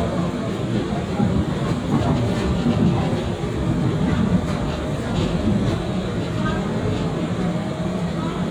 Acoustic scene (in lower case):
subway train